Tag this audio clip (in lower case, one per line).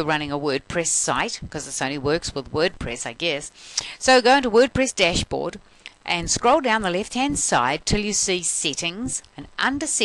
speech